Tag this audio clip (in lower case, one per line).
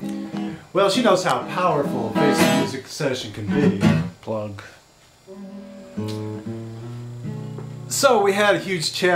speech
music